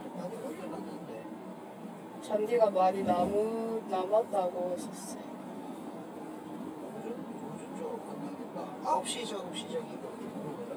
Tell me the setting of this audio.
car